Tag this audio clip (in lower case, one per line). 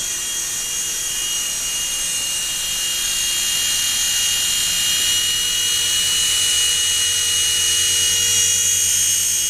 helicopter